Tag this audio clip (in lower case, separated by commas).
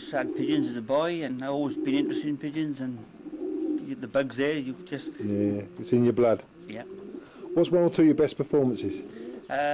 coo, pigeon, bird, bird vocalization